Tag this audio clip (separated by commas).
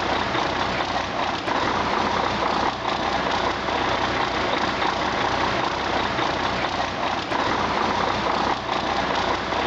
Heavy engine (low frequency)